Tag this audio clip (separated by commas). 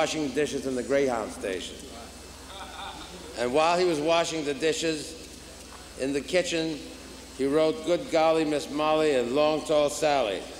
Speech